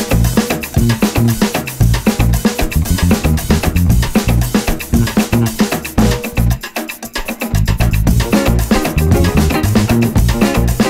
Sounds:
music

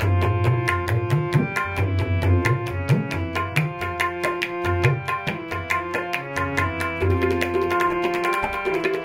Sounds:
playing tabla

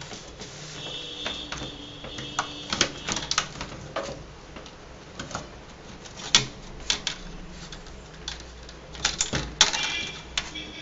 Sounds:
inside a small room

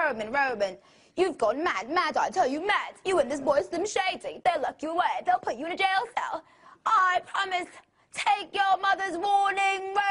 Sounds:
speech

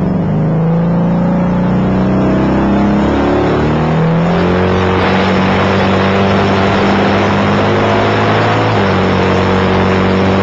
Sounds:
car

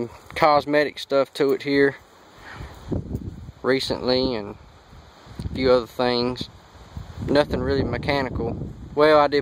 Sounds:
speech

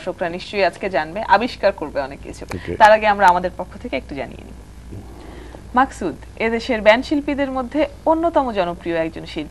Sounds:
speech

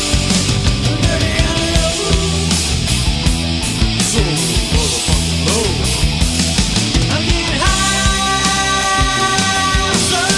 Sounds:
independent music
progressive rock
music
rock and roll

